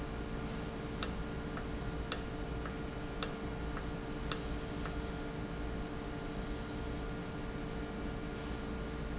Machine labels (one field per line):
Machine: valve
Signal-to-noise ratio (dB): -6 dB